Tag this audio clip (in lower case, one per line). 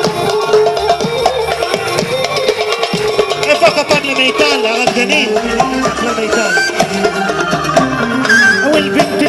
music
speech